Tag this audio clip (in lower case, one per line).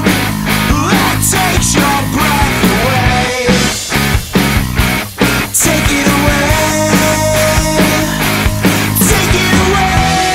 grunge